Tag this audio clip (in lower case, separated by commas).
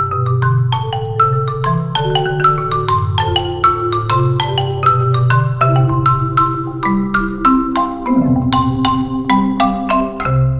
playing marimba